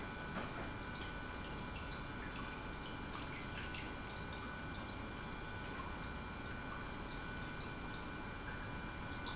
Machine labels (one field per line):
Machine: pump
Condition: normal